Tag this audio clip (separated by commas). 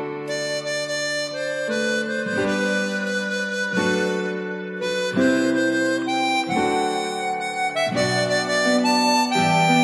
Music